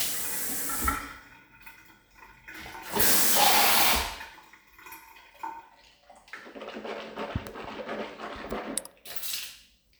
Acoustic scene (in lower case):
restroom